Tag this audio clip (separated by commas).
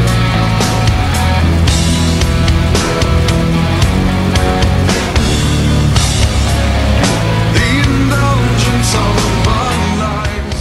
Music